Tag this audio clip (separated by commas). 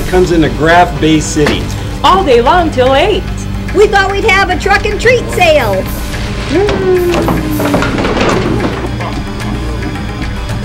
Speech, Music